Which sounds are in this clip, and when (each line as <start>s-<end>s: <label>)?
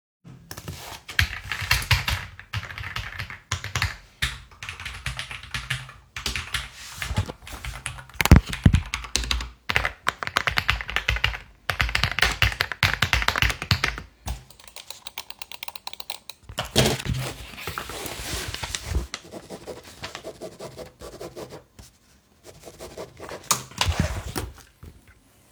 0.0s-16.2s: keyboard typing